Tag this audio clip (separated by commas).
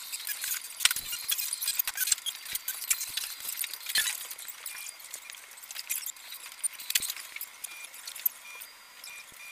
inside a large room or hall